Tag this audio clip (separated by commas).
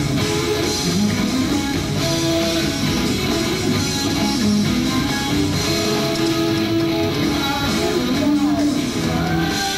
Music